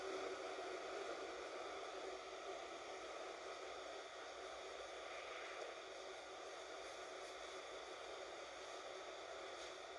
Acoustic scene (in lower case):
bus